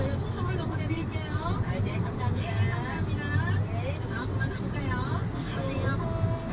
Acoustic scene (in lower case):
car